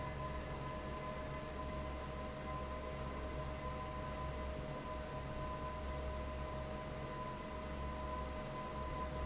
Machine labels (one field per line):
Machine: fan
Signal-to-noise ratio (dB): 0 dB